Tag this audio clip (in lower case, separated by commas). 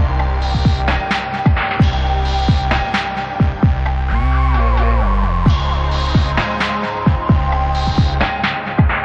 hum, throbbing